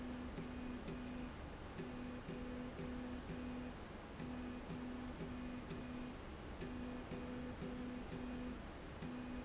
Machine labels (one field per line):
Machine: slide rail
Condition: normal